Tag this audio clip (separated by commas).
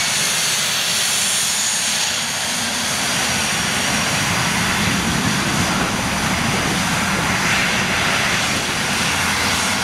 Aircraft engine, Vehicle, Aircraft, outside, rural or natural, Fixed-wing aircraft